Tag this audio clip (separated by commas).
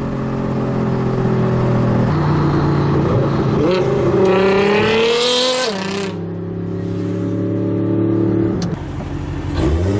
Vehicle, Car, outside, urban or man-made